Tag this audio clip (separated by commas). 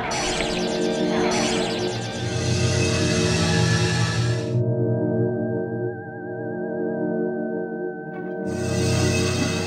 Music